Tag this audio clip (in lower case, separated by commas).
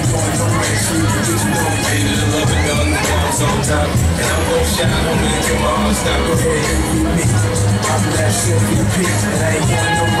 speech, music